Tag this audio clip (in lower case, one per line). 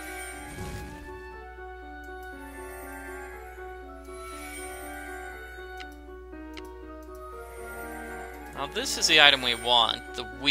speech
inside a small room
music